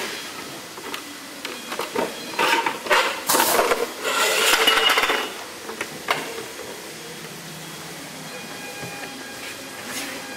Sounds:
dishes, pots and pans, silverware

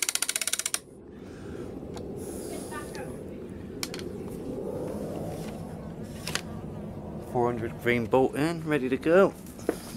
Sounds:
speech

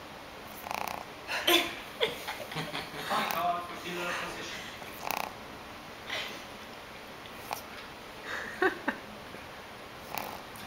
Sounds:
snoring, speech

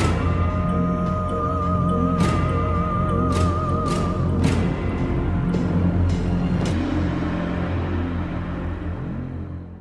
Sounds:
music, scary music

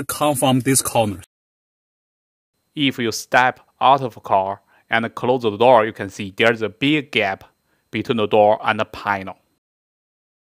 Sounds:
opening or closing car doors

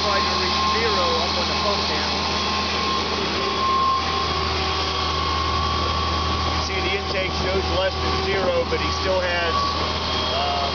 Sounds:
medium engine (mid frequency), engine, idling, vehicle, speech

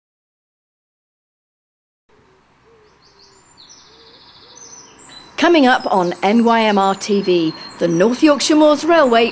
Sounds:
vehicle, bird song, tweet, speech, outside, rural or natural

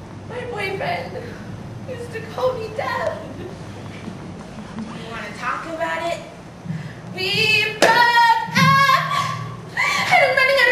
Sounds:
speech, woman speaking

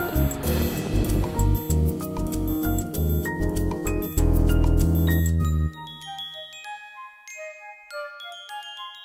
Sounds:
tinkle

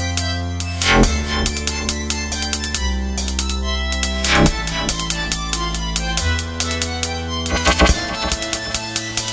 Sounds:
electronic music, dubstep, music

